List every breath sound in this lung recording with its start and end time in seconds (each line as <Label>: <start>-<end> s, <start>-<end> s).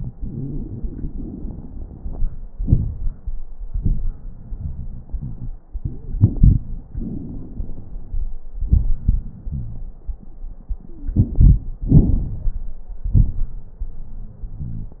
Inhalation: 1.04-2.47 s, 6.94-8.33 s, 11.02-11.70 s
Exhalation: 2.54-3.44 s, 8.61-10.01 s, 11.82-12.73 s
Wheeze: 9.44-9.87 s, 10.89-11.13 s, 14.62-15.00 s
Crackles: 1.04-2.47 s, 2.54-3.44 s, 6.94-8.33 s, 11.02-11.70 s, 11.82-12.73 s